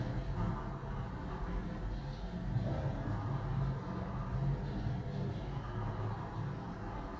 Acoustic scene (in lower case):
elevator